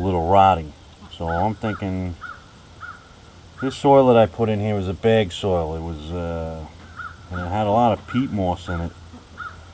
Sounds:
Bird vocalization, Bird

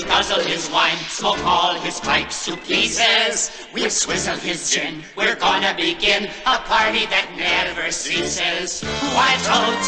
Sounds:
Music

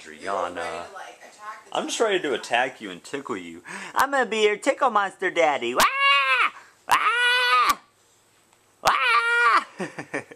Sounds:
inside a large room or hall, Speech

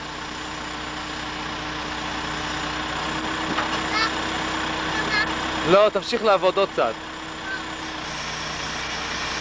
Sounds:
Speech, Vehicle, Truck

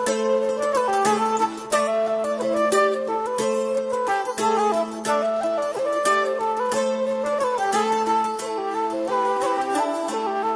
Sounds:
Music

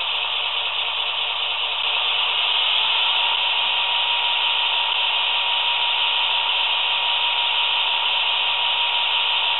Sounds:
Sound effect

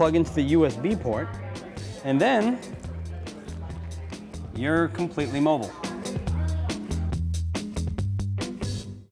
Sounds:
Music, Speech

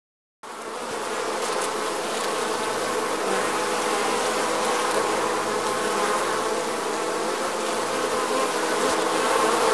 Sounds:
etc. buzzing

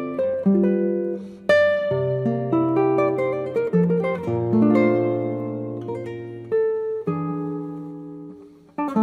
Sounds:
Guitar, Musical instrument, Plucked string instrument, Acoustic guitar, Music

